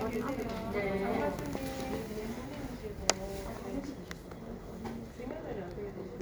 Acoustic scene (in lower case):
crowded indoor space